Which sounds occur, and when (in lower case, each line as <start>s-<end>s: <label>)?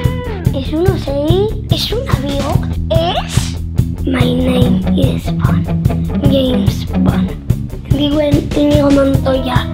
0.0s-9.7s: music
0.4s-1.5s: child speech
1.7s-2.7s: child speech
2.9s-3.5s: child speech
4.0s-4.7s: child speech
4.9s-5.6s: child speech
6.2s-6.8s: child speech
6.9s-7.4s: child speech
7.9s-8.4s: child speech
8.5s-9.7s: child speech